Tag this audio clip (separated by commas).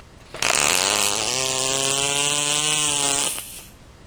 Fart